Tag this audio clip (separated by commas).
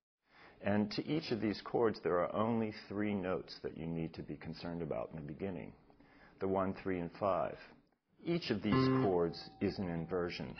Plucked string instrument, Musical instrument, Music, Speech, Guitar, Strum